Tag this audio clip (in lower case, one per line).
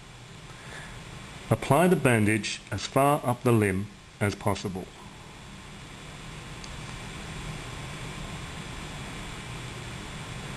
speech
outside, rural or natural